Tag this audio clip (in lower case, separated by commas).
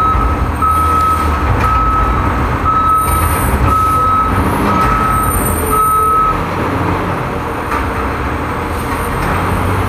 air brake, truck, vehicle, reversing beeps